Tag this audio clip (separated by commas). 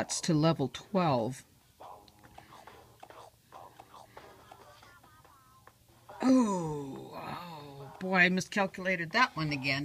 Speech